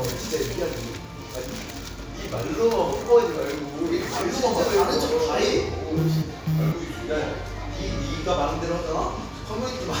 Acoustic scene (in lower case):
restaurant